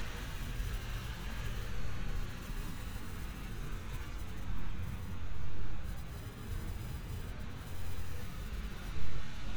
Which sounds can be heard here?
background noise